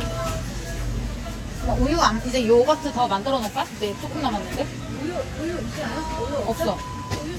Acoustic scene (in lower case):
crowded indoor space